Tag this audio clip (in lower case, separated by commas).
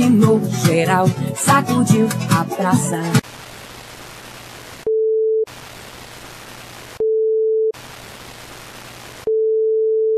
singing, music